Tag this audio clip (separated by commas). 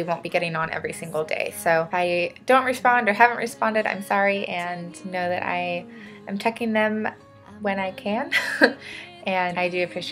Speech, Music